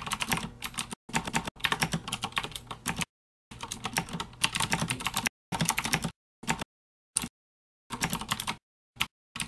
Typing on a computer keyboard